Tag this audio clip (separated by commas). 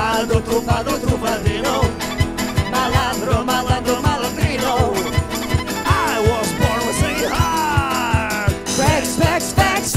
Jingle (music), Music, Singing